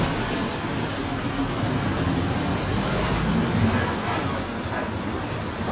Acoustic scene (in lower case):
bus